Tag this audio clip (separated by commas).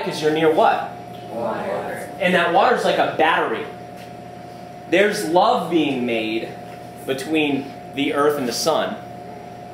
Speech